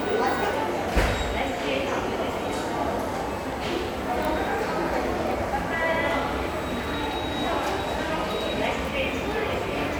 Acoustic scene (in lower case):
subway station